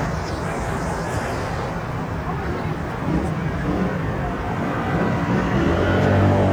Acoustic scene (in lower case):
street